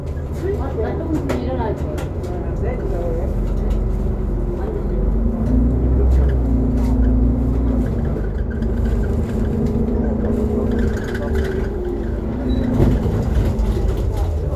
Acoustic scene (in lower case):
bus